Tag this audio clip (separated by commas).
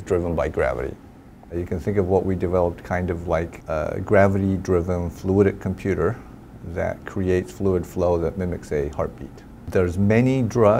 Speech